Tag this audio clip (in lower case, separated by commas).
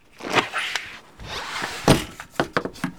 squeak